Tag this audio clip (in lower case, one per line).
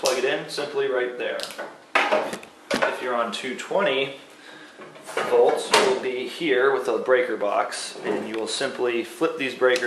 speech